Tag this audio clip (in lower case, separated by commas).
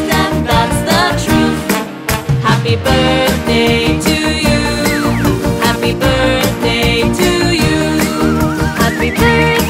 music, music for children